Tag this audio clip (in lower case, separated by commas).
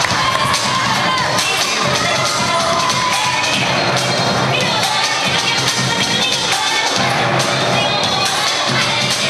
music, cheering